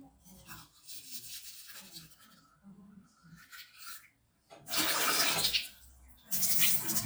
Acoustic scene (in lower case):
restroom